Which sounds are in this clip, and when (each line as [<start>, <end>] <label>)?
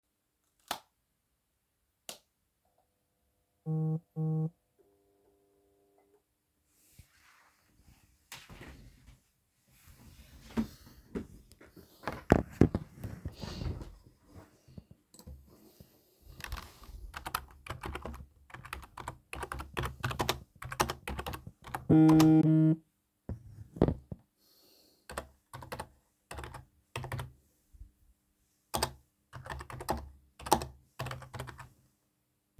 [0.62, 2.31] light switch
[3.61, 4.61] phone ringing
[16.31, 22.85] keyboard typing
[21.80, 22.88] phone ringing
[25.07, 27.35] keyboard typing
[28.59, 31.75] keyboard typing